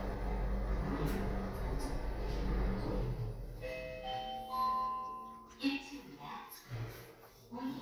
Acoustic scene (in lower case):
elevator